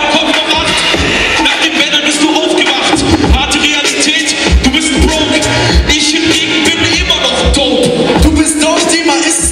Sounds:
Music

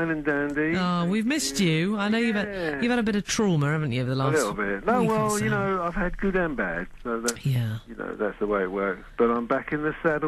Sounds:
Speech

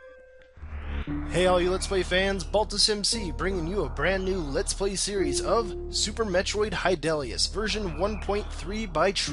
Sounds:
Speech

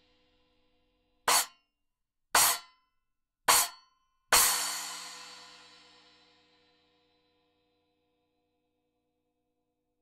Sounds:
Music

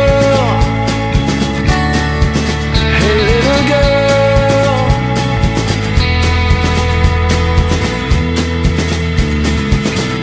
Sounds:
Music

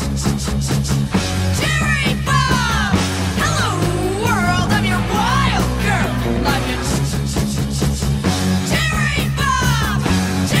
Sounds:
Grunge, Music

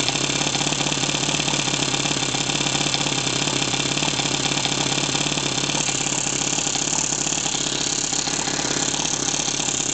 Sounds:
Engine, Idling

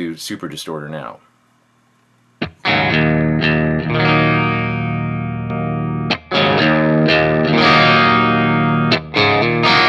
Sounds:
Guitar, Plucked string instrument, Rock music, Effects unit, Musical instrument, Speech, Distortion, Music, Bass guitar, Heavy metal

